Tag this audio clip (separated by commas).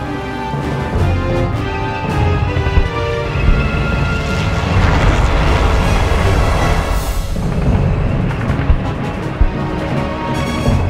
Music